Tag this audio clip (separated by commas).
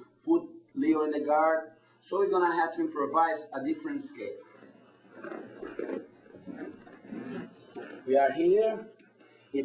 Speech